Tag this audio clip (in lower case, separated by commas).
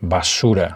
speech, male speech, human voice